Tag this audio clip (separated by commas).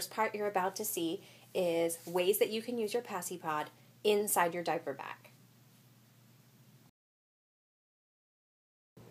Speech